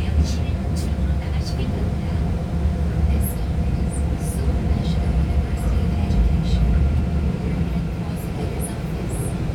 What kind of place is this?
subway train